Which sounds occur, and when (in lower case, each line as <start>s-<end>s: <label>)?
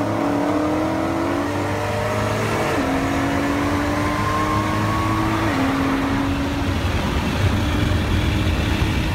0.0s-6.6s: vroom
0.0s-9.1s: car
3.5s-5.3s: tire squeal